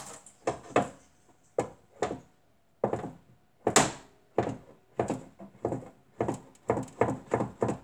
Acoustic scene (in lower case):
kitchen